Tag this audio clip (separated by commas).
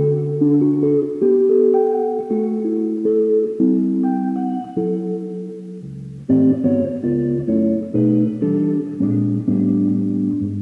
Harmonic, Guitar, Musical instrument, Plucked string instrument, Music